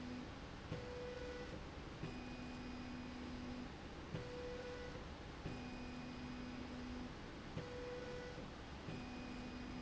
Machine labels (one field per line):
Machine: slide rail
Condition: normal